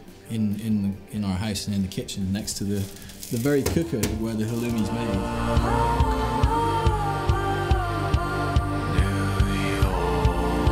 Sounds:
Music, Speech

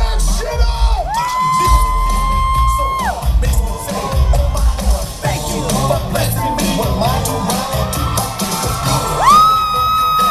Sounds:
Music, Music of Latin America, Singing

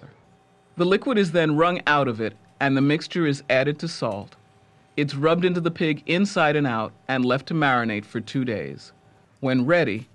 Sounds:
Speech

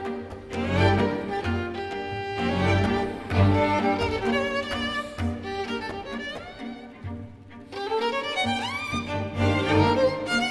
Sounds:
Musical instrument, Violin, Music

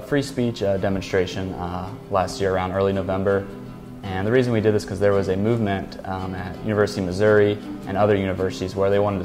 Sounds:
Music, Speech, man speaking, Narration

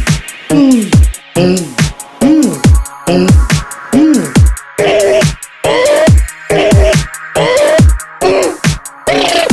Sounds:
Music

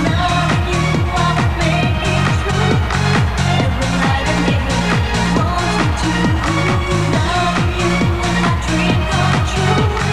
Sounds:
Music of Asia, Music

